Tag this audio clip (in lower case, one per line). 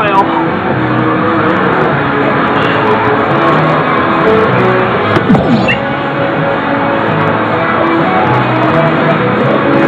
music
speech